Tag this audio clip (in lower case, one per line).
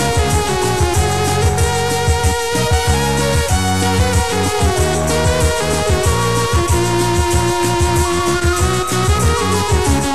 music